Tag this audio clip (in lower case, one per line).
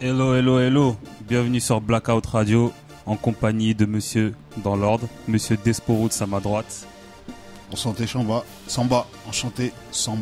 music
speech